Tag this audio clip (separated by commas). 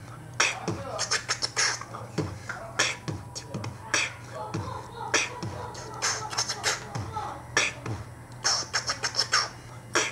Speech, Beatboxing, Vocal music